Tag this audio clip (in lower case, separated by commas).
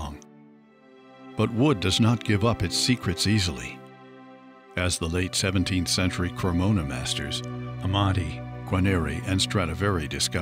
speech, music